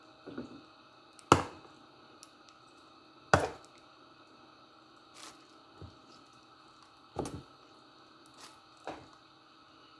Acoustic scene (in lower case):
kitchen